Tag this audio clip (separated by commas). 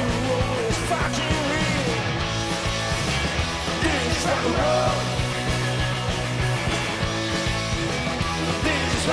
Music